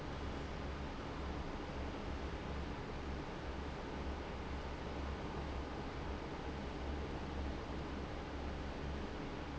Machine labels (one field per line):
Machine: fan